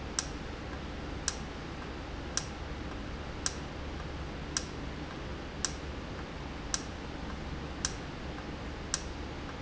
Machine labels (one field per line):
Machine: valve